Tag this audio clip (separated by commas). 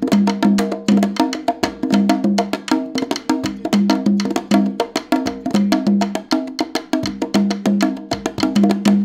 playing congas